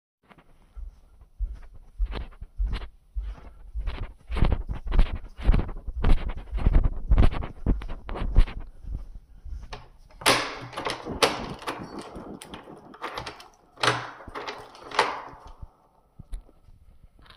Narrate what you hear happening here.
I went to the door in the room I was in. I turned to key's to lock the door, then I turned them again to unlock it.